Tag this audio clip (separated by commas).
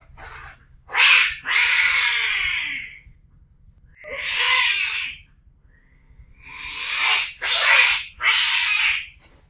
Cat, Animal, Domestic animals